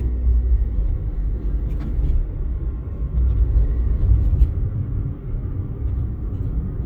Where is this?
in a car